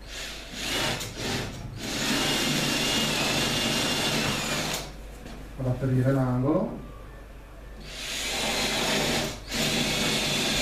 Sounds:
speech

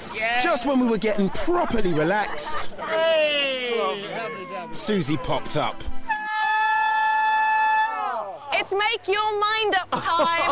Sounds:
water

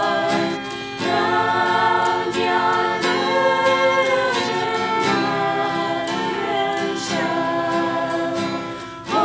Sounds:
male singing, choir, female singing, music

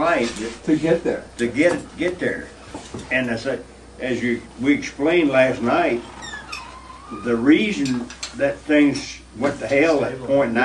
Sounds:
speech

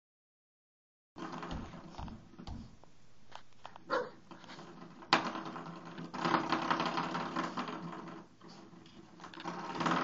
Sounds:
animal, canids, dog, domestic animals

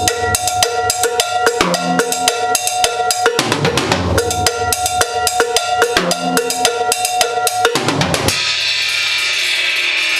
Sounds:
music

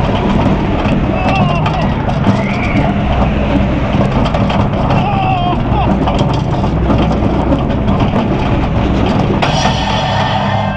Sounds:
roller coaster running

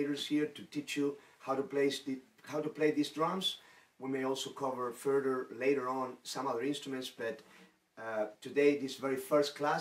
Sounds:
speech

